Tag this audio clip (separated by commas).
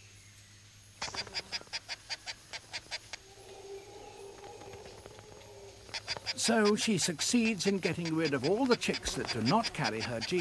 Bird, Speech, outside, rural or natural, Quack